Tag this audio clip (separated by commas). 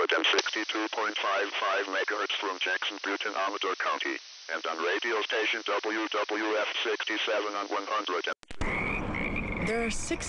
Radio, Speech